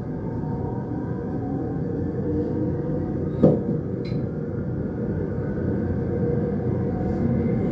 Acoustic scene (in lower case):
subway train